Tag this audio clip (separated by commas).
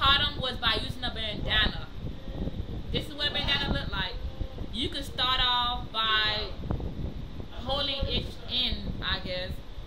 Speech